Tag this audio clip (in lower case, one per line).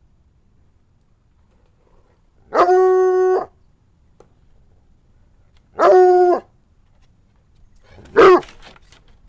dog baying